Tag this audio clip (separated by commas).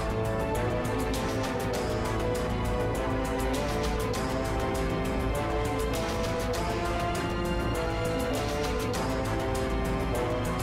Music